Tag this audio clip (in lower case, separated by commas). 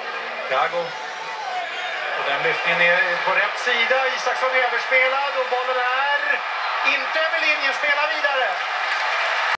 speech